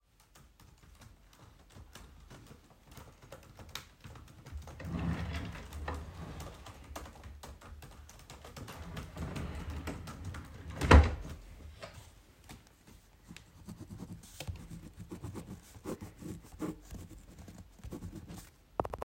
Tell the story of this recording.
Iwas typing of my keyboard, while still typing i pulled out a pen from my drawer, stopped my typyin and took some notes.